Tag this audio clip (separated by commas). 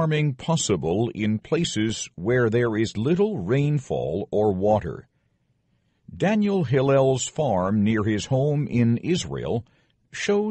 Speech